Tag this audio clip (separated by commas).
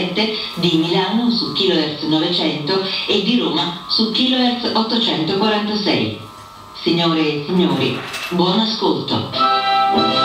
Speech, Radio, Music